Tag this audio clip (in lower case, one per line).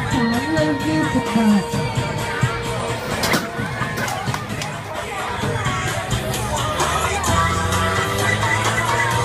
music
speech